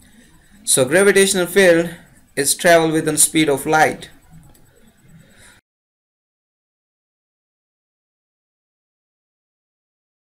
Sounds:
Speech

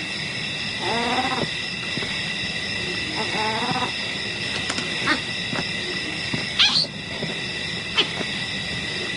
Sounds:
Animal, Wild animals

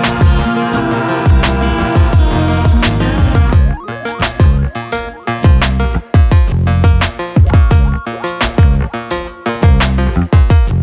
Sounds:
Music

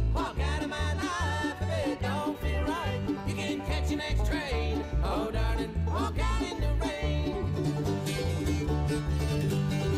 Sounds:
Music

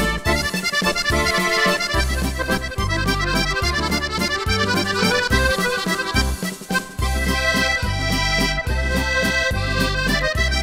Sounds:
Music, New-age music

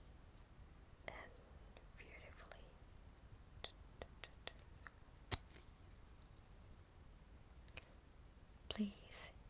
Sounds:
Speech

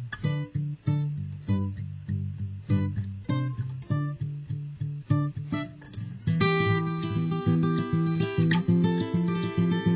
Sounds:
Music, Strum, Plucked string instrument, Musical instrument, Guitar

